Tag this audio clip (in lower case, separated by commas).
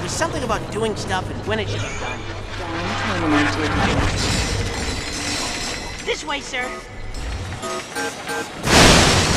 speech, music